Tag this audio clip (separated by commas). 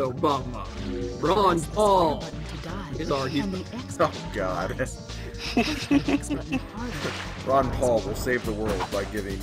Music, Speech